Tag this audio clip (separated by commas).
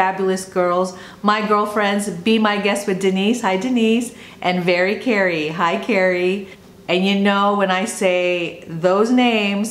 Speech